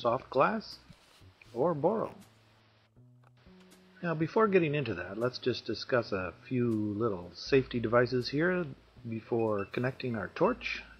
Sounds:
Speech

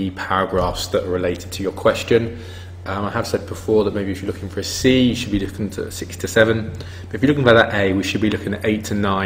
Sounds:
Speech

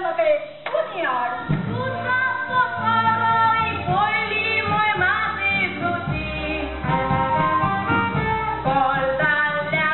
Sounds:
inside a large room or hall, Singing, Speech, Music

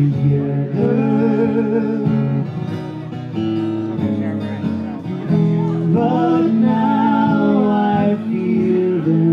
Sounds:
Music, Country, Speech

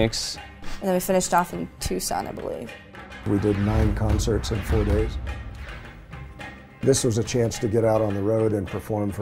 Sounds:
Speech, Music

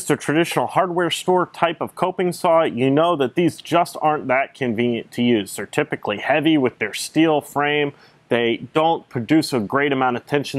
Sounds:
Speech

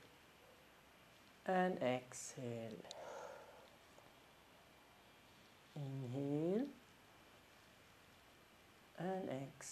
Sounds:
Speech

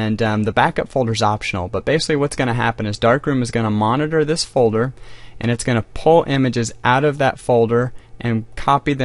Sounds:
Speech

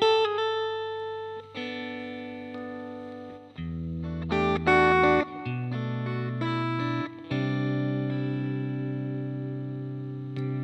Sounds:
Music

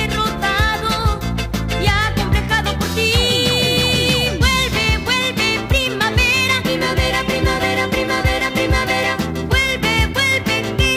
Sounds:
Roll, Music, Rock and roll

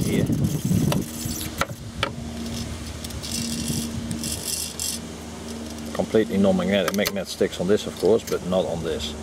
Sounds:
Speech, outside, rural or natural

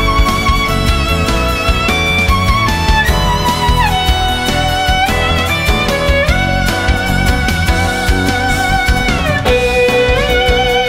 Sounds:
Musical instrument, fiddle, Music

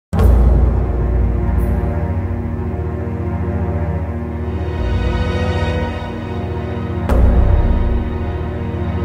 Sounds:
Scary music, Music

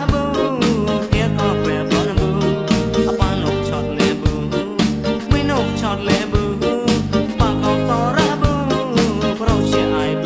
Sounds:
Music, Funk, Pop music

